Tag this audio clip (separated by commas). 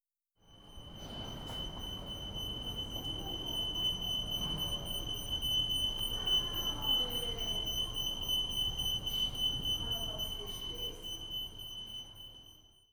Alarm